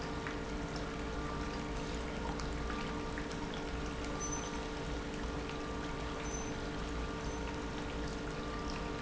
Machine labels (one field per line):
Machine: pump